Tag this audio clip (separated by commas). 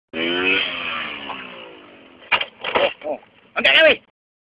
Speech, outside, rural or natural, Vehicle, Motorcycle